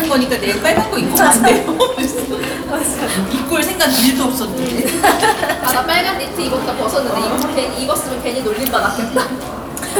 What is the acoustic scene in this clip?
cafe